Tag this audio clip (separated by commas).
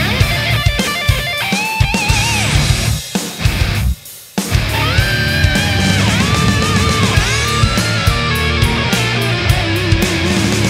Heavy metal, Music